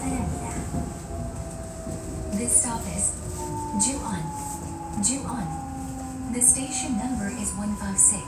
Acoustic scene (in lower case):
subway train